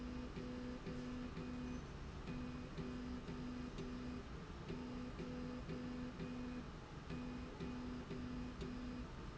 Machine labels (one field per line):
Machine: slide rail